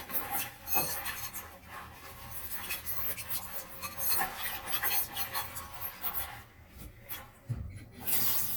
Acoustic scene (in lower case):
kitchen